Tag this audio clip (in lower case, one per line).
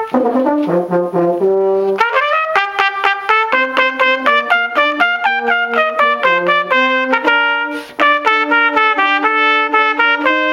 trumpet
french horn
brass instrument